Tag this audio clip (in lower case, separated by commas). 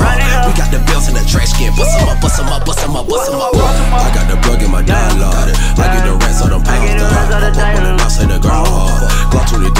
music